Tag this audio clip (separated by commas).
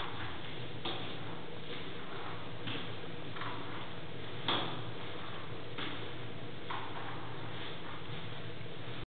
Walk